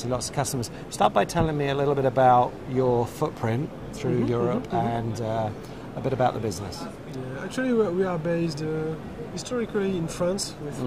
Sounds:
Speech

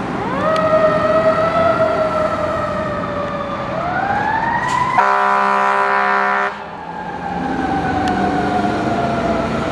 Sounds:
Vehicle, Accelerating, Engine, Heavy engine (low frequency)

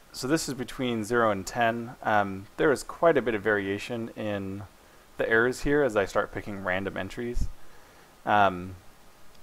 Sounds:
Speech

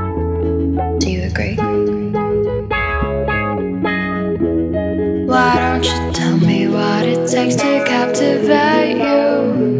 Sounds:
Music

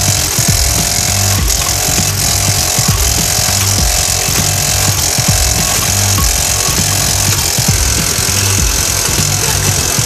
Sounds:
Music

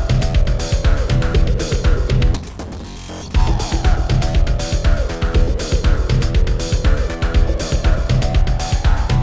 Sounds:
Music

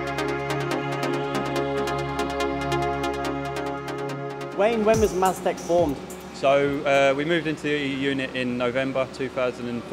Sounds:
Speech, Music

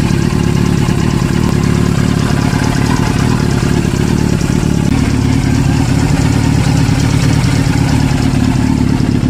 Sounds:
car engine knocking

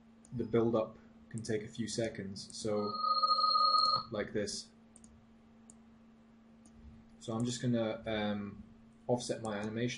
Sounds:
Alarm, Speech

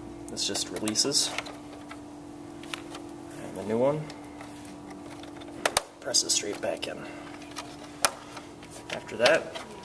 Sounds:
inside a small room, Speech

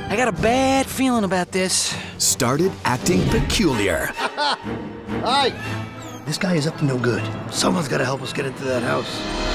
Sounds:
Music, Speech

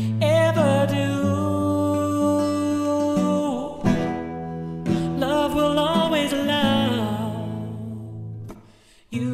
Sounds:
Mandolin, Singing, Music

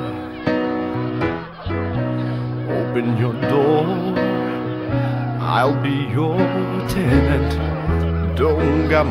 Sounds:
Singing

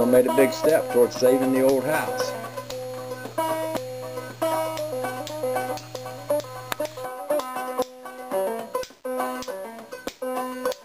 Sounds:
Speech, Music

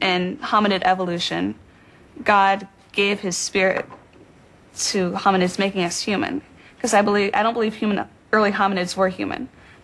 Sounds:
woman speaking

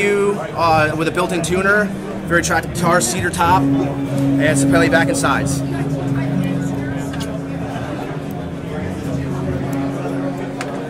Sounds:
Strum, Musical instrument, Guitar, Speech, Tender music, Plucked string instrument, Music

